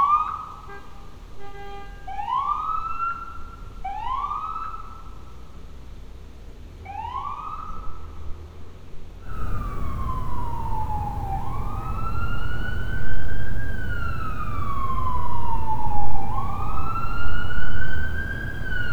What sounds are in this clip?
siren